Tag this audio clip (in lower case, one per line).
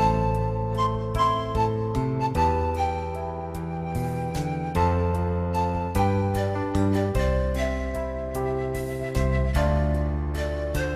music